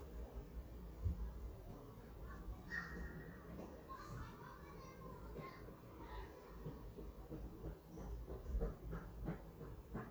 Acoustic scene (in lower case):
residential area